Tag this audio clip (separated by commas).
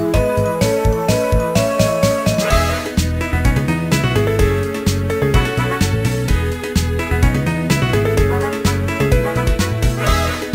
Theme music, Video game music, Music